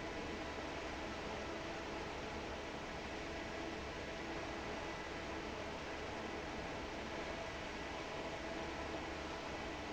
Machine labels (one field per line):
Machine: fan